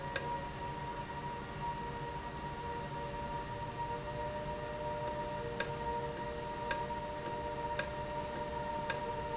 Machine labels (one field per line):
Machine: valve